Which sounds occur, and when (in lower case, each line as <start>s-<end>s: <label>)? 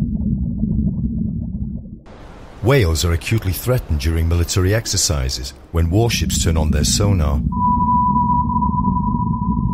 2.0s-9.7s: water
5.7s-7.4s: male speech
7.0s-9.7s: gurgling
7.4s-9.7s: sonar